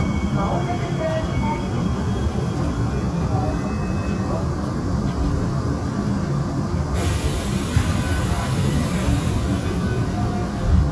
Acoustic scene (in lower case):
subway train